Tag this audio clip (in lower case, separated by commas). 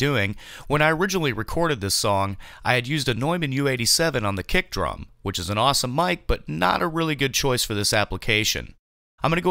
speech